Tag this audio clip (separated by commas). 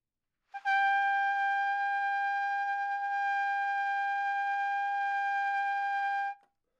Brass instrument, Music, Trumpet, Musical instrument